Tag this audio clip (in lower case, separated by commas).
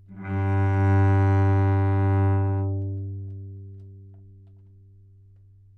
musical instrument, music, bowed string instrument